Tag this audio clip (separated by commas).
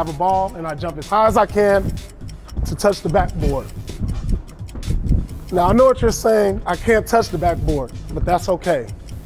Tick, Speech, Music